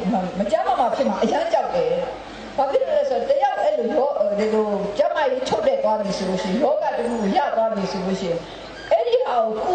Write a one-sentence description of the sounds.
Female speaker talking but in a foreign accent